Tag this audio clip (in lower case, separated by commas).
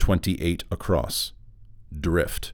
speech, human voice, male speech